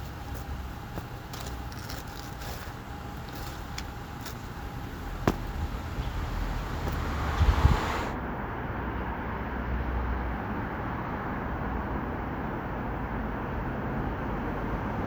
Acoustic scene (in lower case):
street